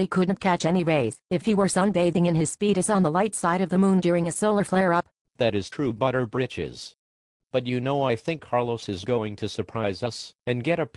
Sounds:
speech synthesizer

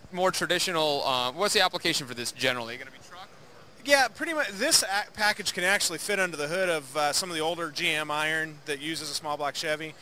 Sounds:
speech

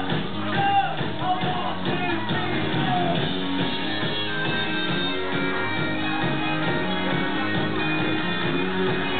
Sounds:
music
rock and roll

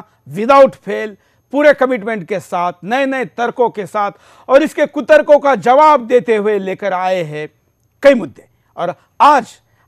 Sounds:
speech
man speaking
monologue

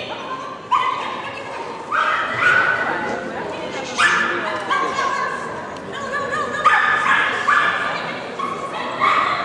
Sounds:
animal
bow-wow
speech
pets
dog

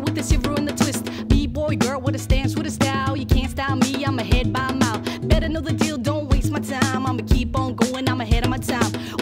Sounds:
music

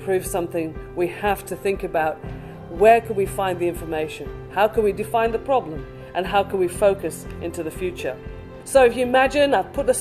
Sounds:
music
speech

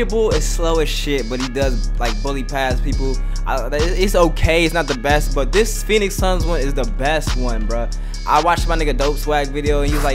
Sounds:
music
speech

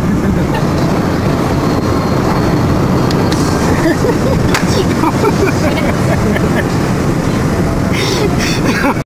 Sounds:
speech

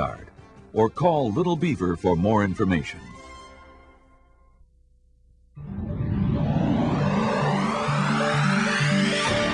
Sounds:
speech
music

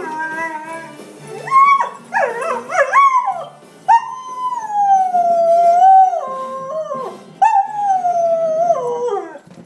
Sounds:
howl
pets
whimper (dog)
animal
music
dog

